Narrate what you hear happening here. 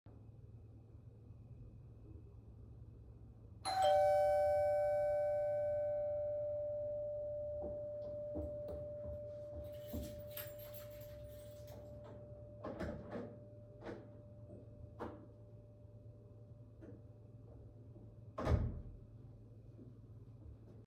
The bell rang, I walked to the door, used the keys to open it, and closed it afterwards again